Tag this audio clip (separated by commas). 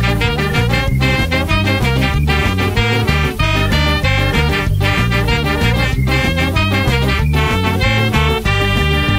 Swing music, Music